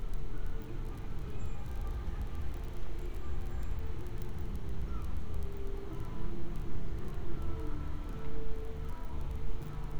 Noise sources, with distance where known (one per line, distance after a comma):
music from a fixed source, far